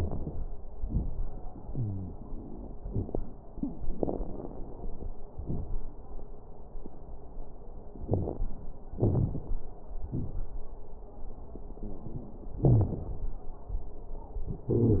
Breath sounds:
1.67-2.15 s: wheeze
3.95-5.12 s: inhalation
3.95-5.12 s: crackles
5.34-5.82 s: exhalation
5.34-5.82 s: crackles
8.08-8.37 s: wheeze
8.98-9.55 s: inhalation
8.98-9.55 s: crackles
10.05-10.56 s: exhalation
10.05-10.56 s: crackles
12.62-12.94 s: wheeze

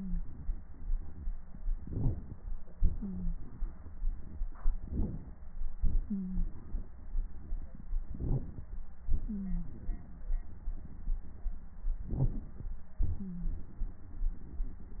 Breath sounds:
1.75-2.39 s: inhalation
2.73-4.40 s: exhalation
3.00-3.36 s: wheeze
4.78-5.39 s: inhalation
5.75-7.91 s: exhalation
6.08-6.46 s: wheeze
8.10-8.71 s: inhalation
9.13-10.40 s: exhalation
9.25-9.68 s: wheeze
10.46-11.88 s: exhalation
12.12-12.73 s: inhalation
13.17-13.50 s: wheeze

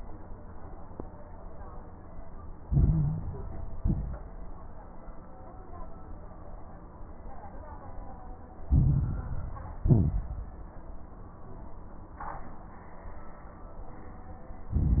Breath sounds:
2.60-3.74 s: inhalation
2.60-3.74 s: crackles
3.78-4.29 s: exhalation
3.78-4.29 s: crackles
8.68-9.82 s: inhalation
8.68-9.82 s: crackles
9.82-10.73 s: exhalation
9.82-10.73 s: crackles
14.69-15.00 s: inhalation
14.69-15.00 s: crackles

